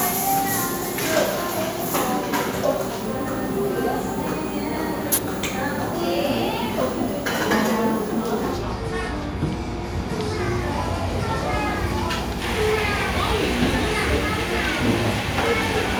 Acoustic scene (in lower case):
cafe